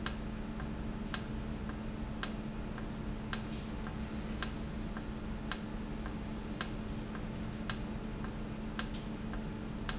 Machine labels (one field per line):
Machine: valve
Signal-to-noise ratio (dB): -6 dB